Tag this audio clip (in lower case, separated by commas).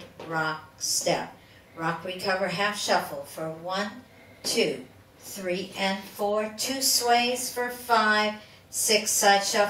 speech